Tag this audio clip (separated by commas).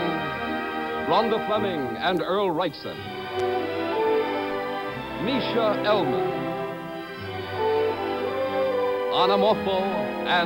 Speech, Music